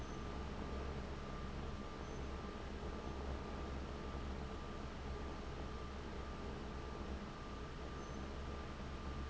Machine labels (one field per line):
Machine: fan